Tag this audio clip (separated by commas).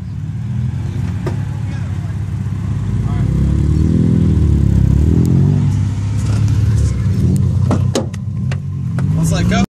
Car, Accelerating, Vehicle